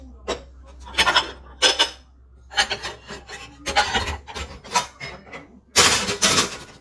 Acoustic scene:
kitchen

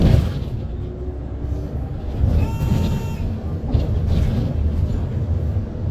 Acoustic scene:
bus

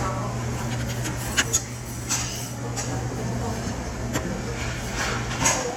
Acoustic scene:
restaurant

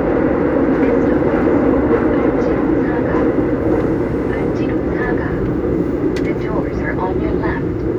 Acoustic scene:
subway train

